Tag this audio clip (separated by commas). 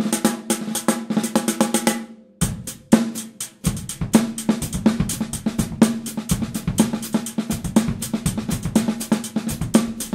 Bass drum, Music, Drum kit, Musical instrument, Drum, Snare drum